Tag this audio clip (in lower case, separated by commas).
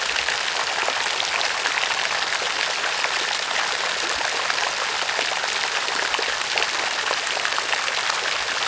water, rain